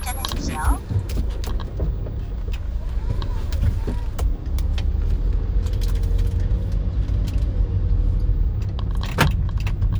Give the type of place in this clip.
car